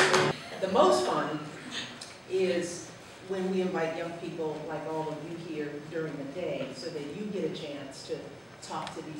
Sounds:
speech

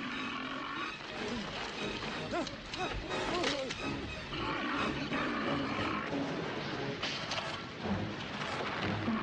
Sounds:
music

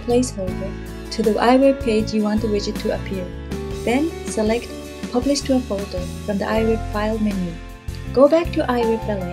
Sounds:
speech
music

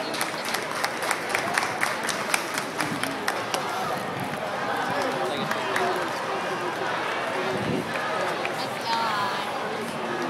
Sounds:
speech

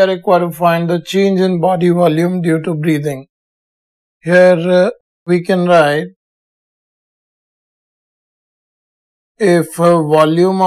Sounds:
speech

